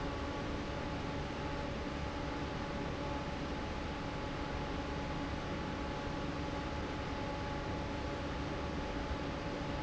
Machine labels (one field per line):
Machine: fan